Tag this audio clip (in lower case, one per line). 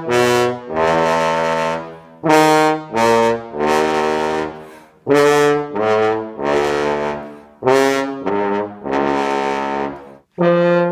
playing french horn
musical instrument
french horn
brass instrument
music